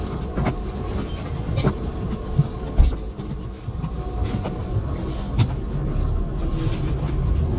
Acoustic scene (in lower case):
bus